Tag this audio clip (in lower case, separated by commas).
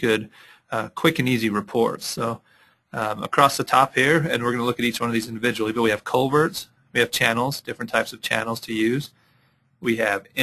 speech